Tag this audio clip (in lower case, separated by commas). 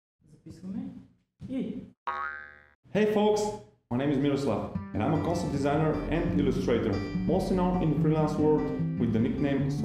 speech, music, inside a small room, boing